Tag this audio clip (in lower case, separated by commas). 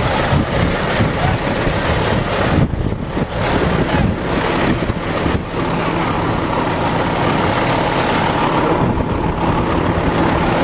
motor vehicle (road), vehicle, speech, truck